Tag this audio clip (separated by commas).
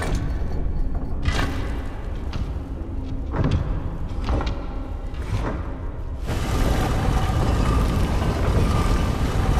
Door